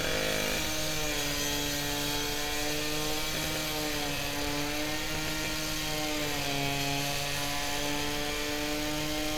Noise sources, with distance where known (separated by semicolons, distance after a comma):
unidentified powered saw, near